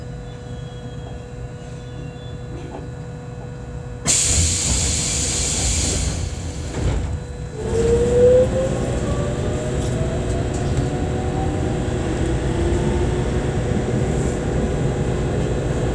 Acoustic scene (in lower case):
subway train